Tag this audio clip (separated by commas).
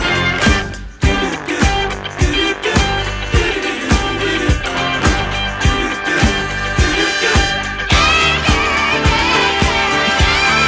Music